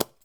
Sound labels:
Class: object falling